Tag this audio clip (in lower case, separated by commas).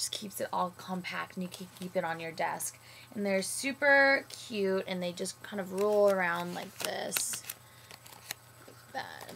speech